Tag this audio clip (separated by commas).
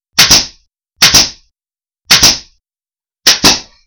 Tools